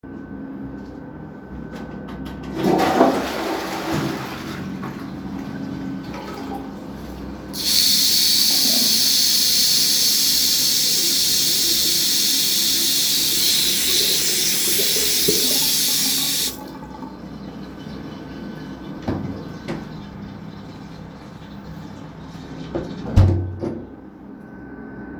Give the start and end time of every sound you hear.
2.1s-17.8s: toilet flushing
7.4s-23.1s: running water
18.8s-24.4s: wardrobe or drawer

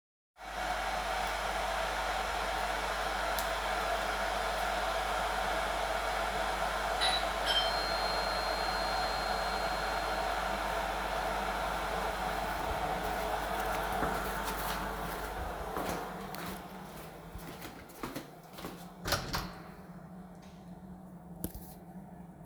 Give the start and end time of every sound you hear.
0.0s-22.5s: vacuum cleaner
0.4s-22.5s: coffee machine
6.9s-10.6s: bell ringing
12.6s-19.0s: footsteps
19.0s-19.6s: door

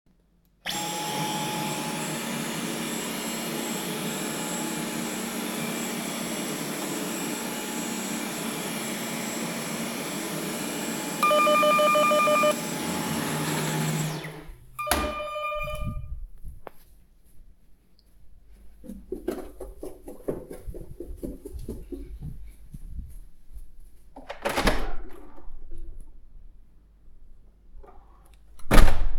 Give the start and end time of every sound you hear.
0.6s-14.7s: vacuum cleaner
11.2s-12.7s: bell ringing
14.8s-16.4s: bell ringing
18.9s-23.7s: footsteps
24.2s-25.6s: door
28.5s-29.2s: door

